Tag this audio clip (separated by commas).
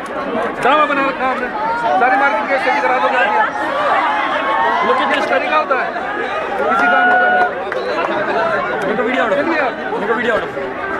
Chatter, Speech, Crowd